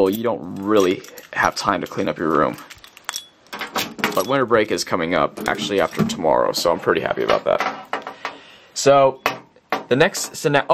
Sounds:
speech

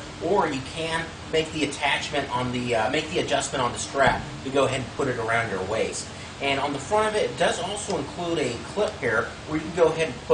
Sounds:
speech

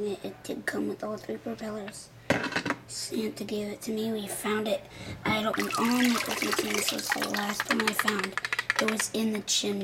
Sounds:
water

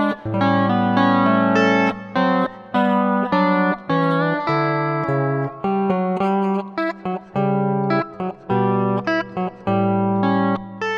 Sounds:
distortion
music

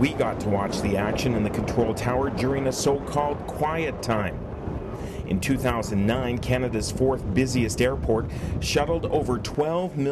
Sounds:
speech

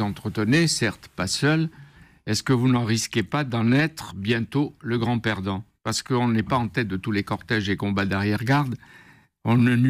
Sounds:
speech

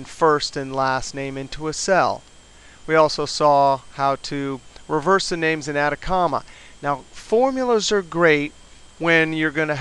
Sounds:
speech

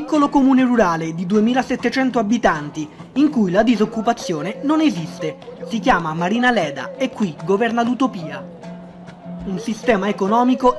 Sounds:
speech
music

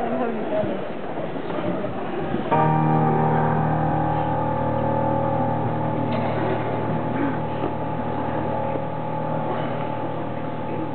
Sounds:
music
speech

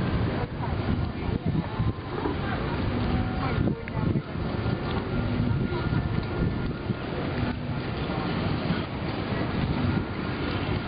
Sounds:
roadway noise
outside, urban or man-made
speech

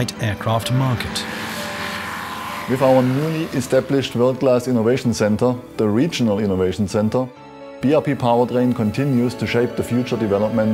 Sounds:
vehicle
music
aircraft
speech

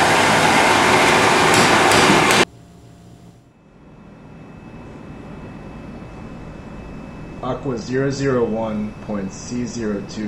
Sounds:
speech

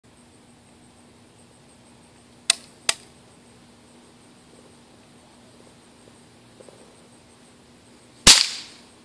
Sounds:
cap gun shooting

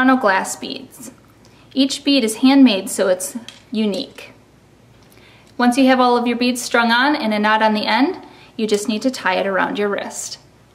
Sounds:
speech

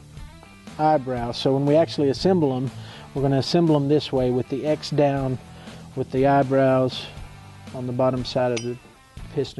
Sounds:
music
speech

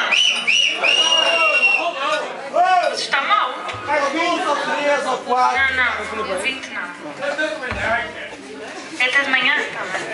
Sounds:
speech

